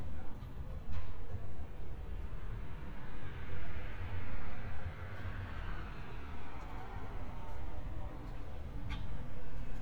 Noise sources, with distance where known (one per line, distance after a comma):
medium-sounding engine
person or small group talking